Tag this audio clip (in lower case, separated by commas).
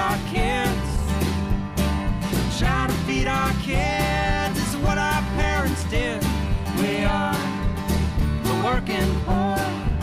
music, bass guitar